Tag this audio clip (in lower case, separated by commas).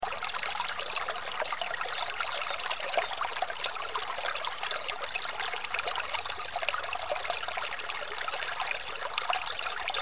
water, stream